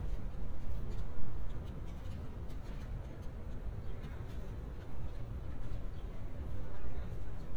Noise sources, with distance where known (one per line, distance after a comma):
background noise